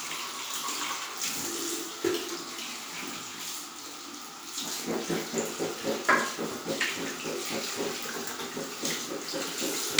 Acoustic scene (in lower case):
restroom